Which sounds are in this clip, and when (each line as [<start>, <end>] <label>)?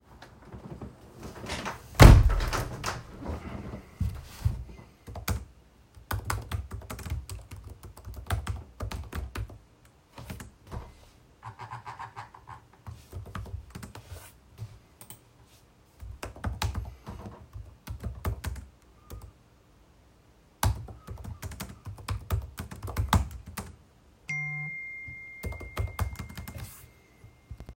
[1.59, 3.79] window
[5.32, 11.23] keyboard typing
[12.78, 14.86] keyboard typing
[15.98, 19.42] keyboard typing
[20.53, 23.86] keyboard typing
[24.22, 27.14] phone ringing
[25.42, 27.04] keyboard typing